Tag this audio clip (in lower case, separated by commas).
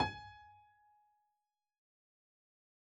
music, keyboard (musical), piano, musical instrument